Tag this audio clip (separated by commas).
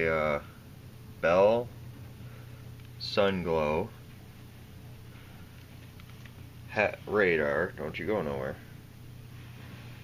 Speech